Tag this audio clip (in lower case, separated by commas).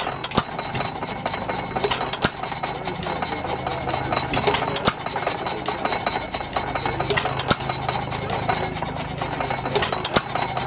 idling, medium engine (mid frequency), engine, speech